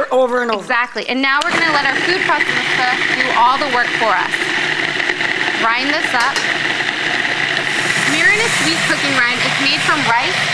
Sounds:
speech, inside a small room

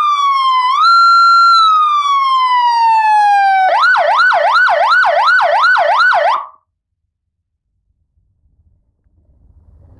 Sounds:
siren, police car (siren), ambulance (siren), emergency vehicle

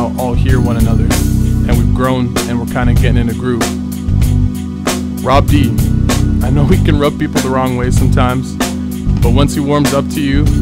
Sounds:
speech, music

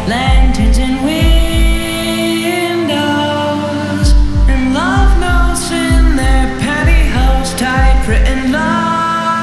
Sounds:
heartbeat

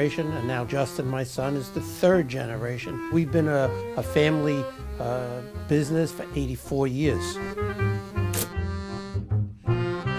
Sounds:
speech, music

